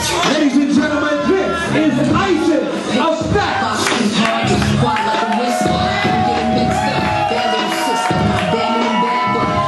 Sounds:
speech
music

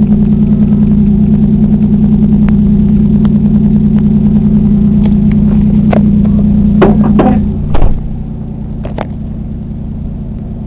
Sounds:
vehicle
car

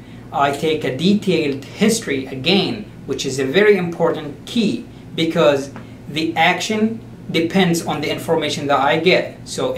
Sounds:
speech

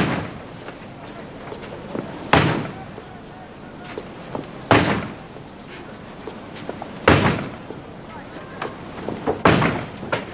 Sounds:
door
speech

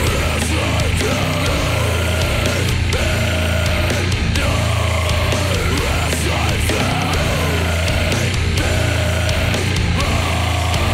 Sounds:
music

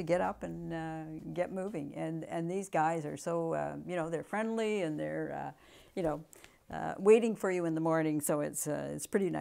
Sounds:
speech

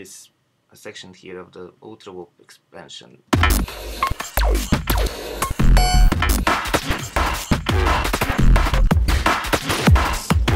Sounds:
sound effect

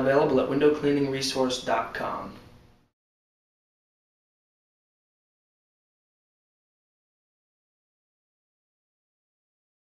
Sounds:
speech

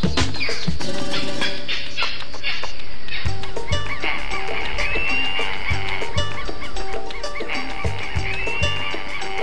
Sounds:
bird
music

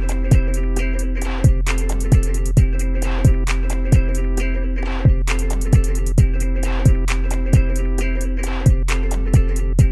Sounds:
music

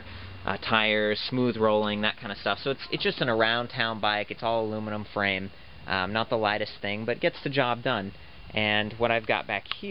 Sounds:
speech

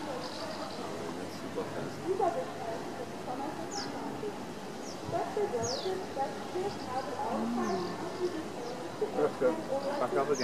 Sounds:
speech

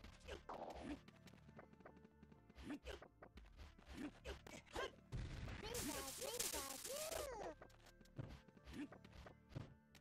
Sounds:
speech

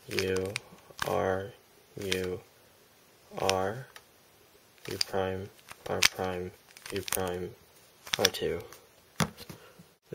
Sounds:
speech
inside a small room

